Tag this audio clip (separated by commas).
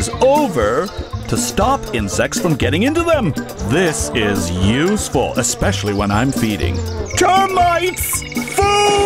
Music, Speech, outside, rural or natural